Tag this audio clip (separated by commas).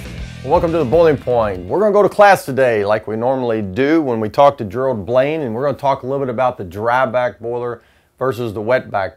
Speech, Music